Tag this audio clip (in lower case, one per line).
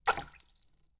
splash
liquid